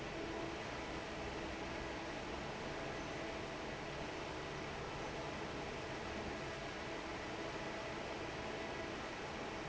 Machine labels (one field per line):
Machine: fan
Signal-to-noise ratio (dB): 6 dB